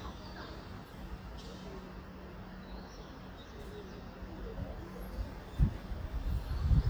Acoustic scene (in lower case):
residential area